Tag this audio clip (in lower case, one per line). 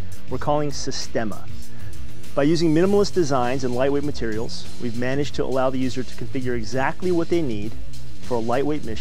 music
speech